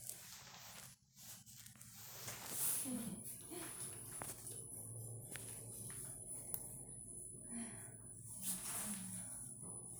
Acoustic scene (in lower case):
elevator